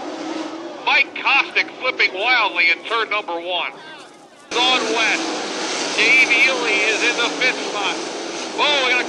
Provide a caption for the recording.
A man is speaking and cars are speeding by